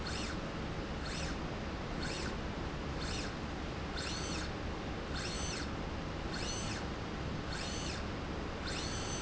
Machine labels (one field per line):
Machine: slide rail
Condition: normal